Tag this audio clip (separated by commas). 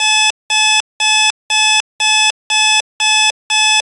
Alarm